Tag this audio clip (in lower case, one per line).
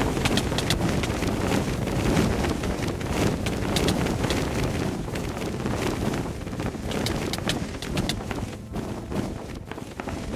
music